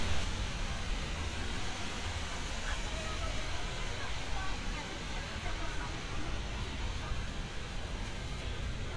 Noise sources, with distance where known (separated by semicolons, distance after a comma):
person or small group shouting, far